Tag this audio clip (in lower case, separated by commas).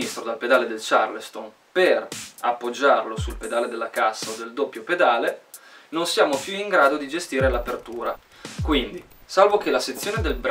cymbal, hi-hat